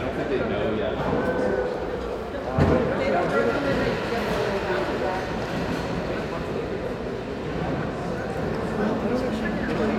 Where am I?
in a crowded indoor space